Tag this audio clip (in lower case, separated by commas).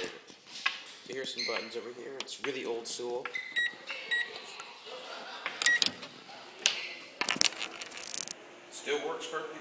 speech